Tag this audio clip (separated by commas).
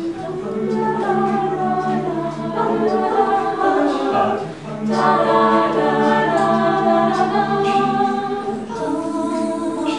Music, Choir, Gospel music, Singing, A capella, Christian music